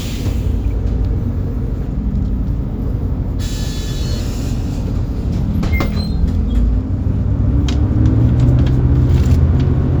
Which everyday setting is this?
bus